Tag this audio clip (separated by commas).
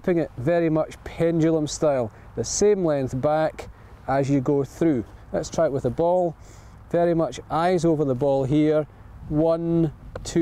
Speech